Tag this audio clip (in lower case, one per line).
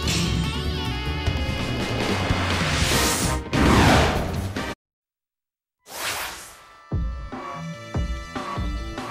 music